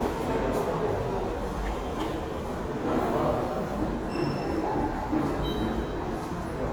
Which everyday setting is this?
subway station